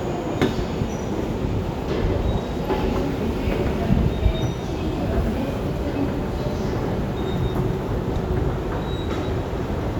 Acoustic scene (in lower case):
subway station